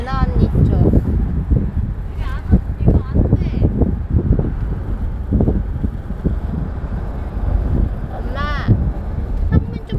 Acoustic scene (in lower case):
car